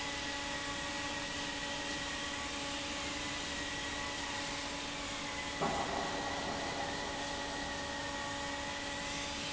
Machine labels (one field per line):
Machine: fan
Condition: normal